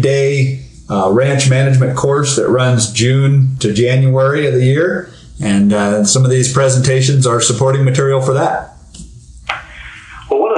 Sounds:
Speech

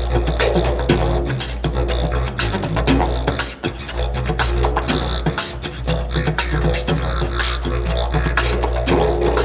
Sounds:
playing didgeridoo

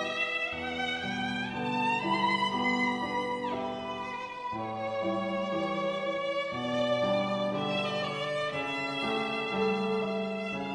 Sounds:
Violin, Musical instrument, Music

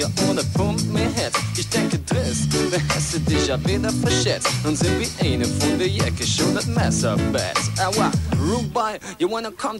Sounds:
Music

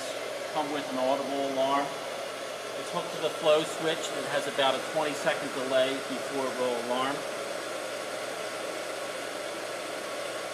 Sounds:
Speech

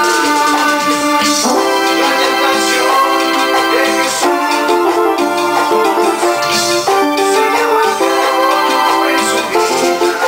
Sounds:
Musical instrument, Synthesizer, Music, Keyboard (musical), Piano

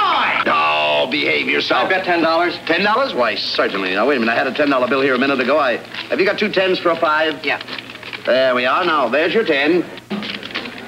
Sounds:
Speech

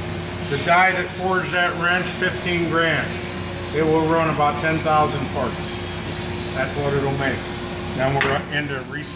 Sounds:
Speech

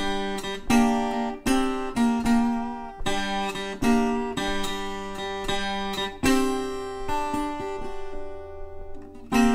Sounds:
Mandolin, Music

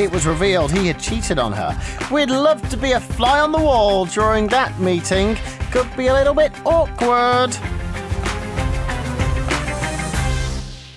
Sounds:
Speech, Music

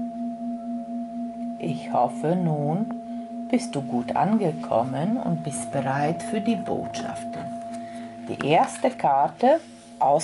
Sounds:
singing bowl

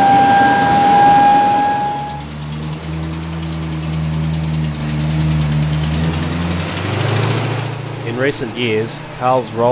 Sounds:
Speech, Vehicle

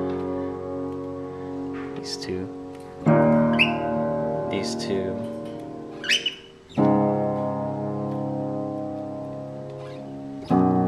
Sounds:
Keyboard (musical), Music, Piano, Musical instrument

